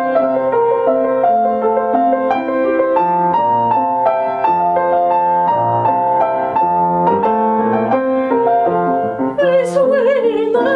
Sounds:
keyboard (musical), music, piano

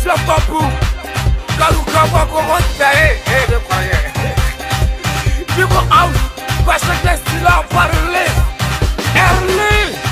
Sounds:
music, rapping

